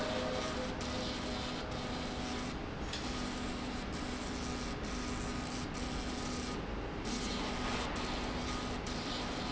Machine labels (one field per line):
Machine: slide rail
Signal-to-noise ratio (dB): -6 dB